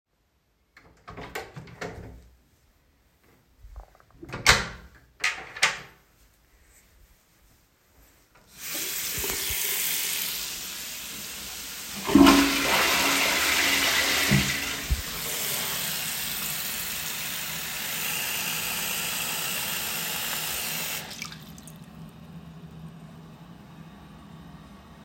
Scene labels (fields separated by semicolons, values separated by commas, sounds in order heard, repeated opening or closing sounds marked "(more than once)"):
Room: bathroom; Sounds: door (more than once), running water, toilet flushing